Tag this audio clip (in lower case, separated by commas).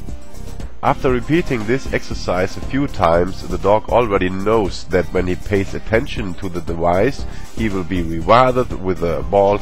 speech, music